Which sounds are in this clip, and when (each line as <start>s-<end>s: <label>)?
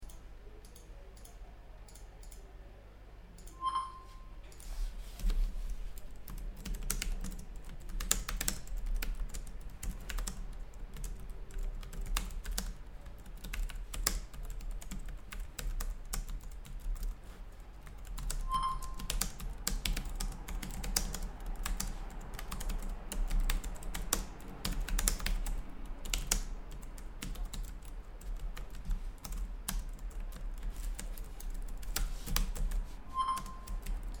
3.5s-4.3s: phone ringing
5.1s-34.2s: keyboard typing
18.4s-19.2s: phone ringing
33.0s-33.8s: phone ringing